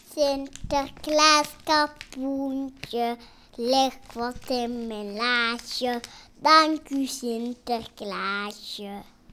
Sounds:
Human voice, Singing

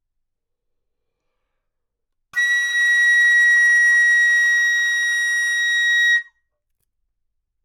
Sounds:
Music, woodwind instrument, Musical instrument

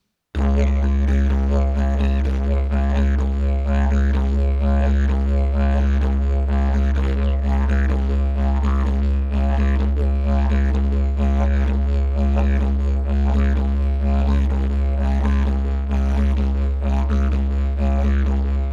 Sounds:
Music, Musical instrument

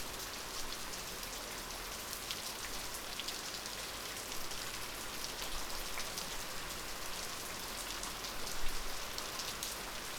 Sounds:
Water, Rain

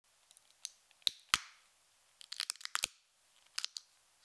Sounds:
Crackle, Crack

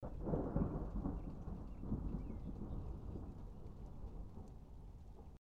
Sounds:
Thunderstorm, Thunder

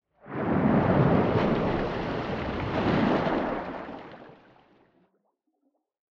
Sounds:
Splash, Liquid

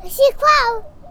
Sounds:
Speech, Child speech, Human voice

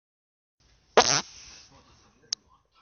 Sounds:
Fart

